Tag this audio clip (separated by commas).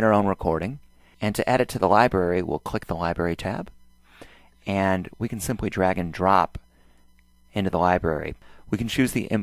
Speech